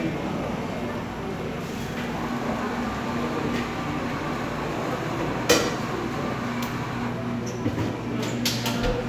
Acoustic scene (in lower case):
cafe